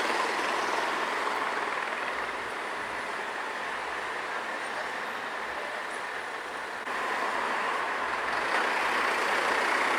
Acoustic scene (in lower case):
street